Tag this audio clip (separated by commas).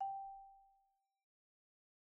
Mallet percussion, Music, Percussion, xylophone, Musical instrument